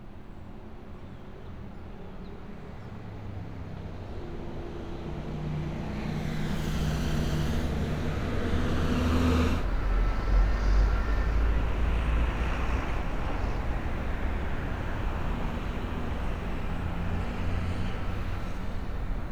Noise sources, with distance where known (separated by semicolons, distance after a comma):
engine of unclear size